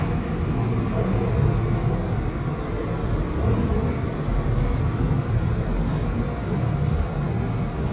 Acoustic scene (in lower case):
subway train